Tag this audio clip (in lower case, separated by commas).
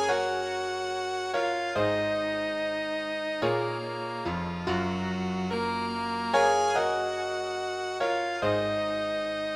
soundtrack music, music